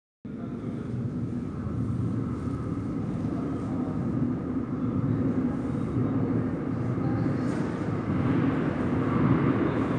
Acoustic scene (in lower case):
subway station